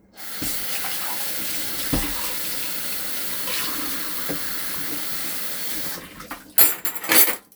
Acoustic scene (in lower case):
kitchen